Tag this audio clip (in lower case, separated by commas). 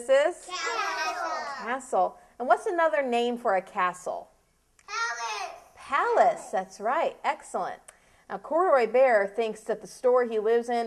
child speech, speech